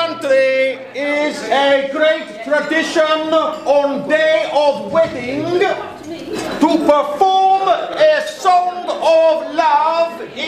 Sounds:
Speech

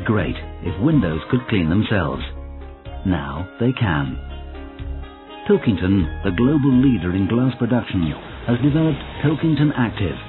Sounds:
Music, Speech

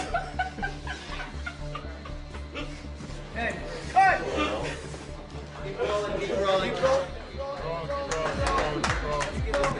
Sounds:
Laughter

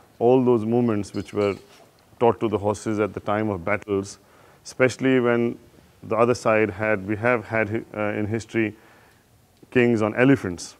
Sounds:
Speech

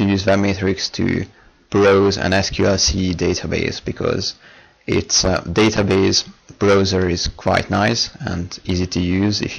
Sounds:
Speech

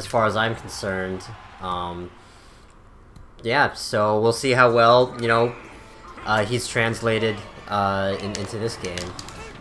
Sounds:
Speech

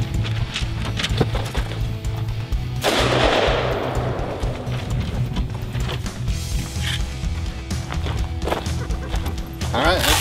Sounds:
Speech, Music

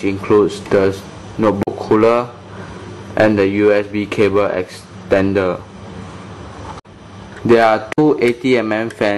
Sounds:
Speech

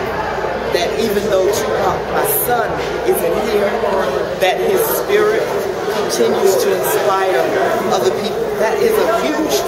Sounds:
inside a large room or hall, Speech

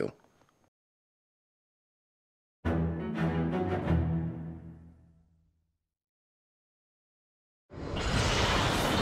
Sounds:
Music, Silence, inside a large room or hall

